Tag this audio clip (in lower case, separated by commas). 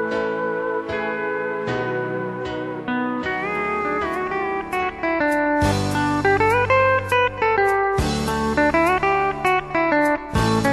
guitar, music